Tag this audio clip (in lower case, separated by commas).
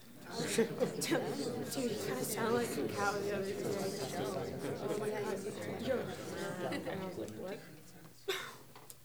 chatter, speech, human voice, conversation, human group actions